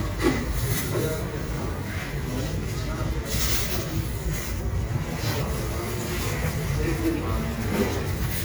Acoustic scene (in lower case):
street